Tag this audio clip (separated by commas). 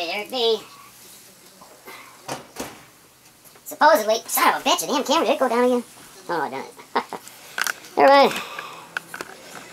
inside a small room, Speech